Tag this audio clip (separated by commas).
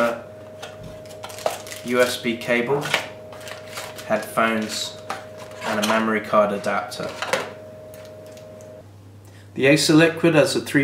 Speech